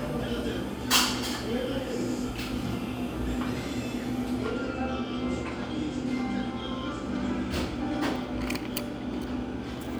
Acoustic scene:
cafe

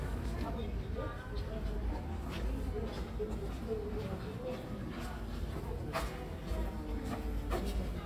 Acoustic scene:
residential area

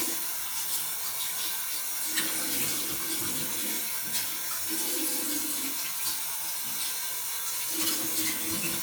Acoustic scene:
restroom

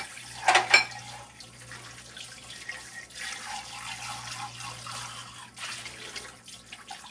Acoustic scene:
kitchen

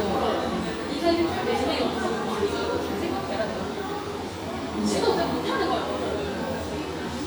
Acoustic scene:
cafe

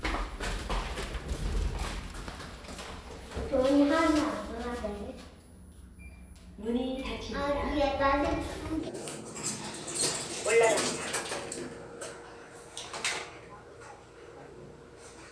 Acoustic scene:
elevator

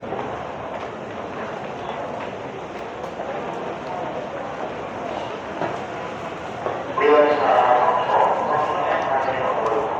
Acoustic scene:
subway station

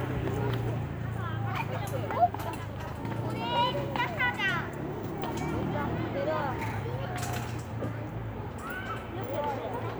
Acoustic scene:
residential area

